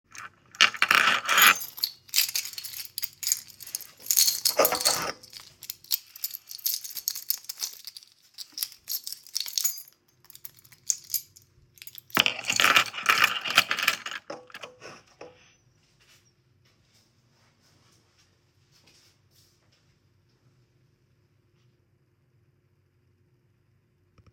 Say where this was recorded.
living room